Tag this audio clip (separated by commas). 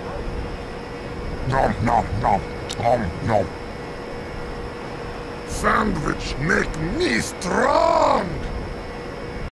Speech